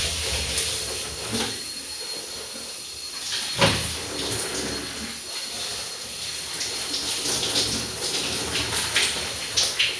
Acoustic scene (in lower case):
restroom